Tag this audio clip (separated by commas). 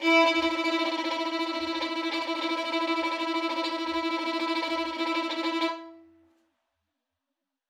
Music, Bowed string instrument, Musical instrument